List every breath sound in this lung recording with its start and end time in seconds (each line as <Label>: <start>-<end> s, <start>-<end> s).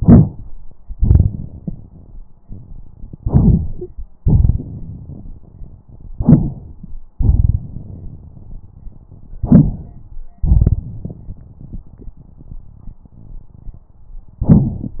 Inhalation: 3.19-4.08 s, 6.16-6.94 s, 9.41-10.20 s
Exhalation: 0.95-2.24 s, 4.23-5.80 s, 7.15-8.72 s, 10.39-13.88 s
Wheeze: 3.81-3.90 s
Crackles: 10.41-13.90 s